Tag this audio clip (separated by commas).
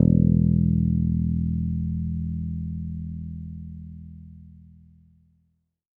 Plucked string instrument, Musical instrument, Music, Bass guitar, Guitar